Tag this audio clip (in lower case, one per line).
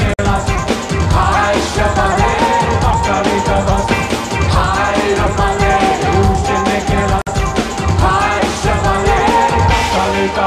music